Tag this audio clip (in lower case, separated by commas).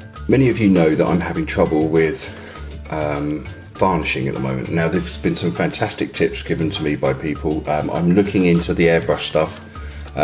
speech, music